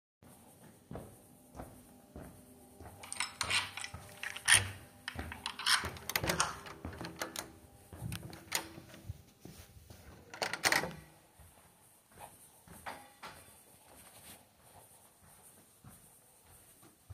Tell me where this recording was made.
hallway, bedroom